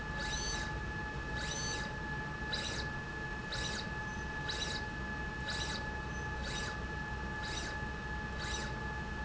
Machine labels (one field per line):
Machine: slide rail